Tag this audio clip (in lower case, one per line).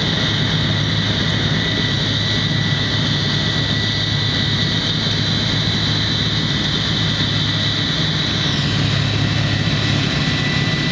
outside, rural or natural
vehicle